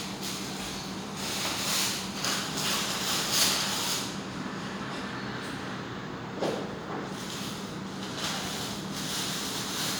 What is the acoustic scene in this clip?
restaurant